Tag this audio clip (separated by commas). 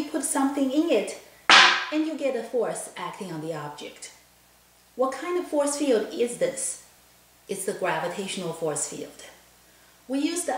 Speech